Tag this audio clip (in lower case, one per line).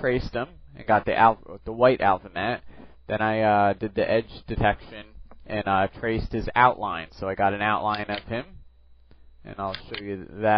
speech